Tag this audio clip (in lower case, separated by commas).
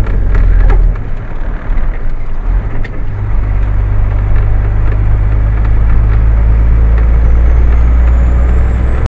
vehicle, car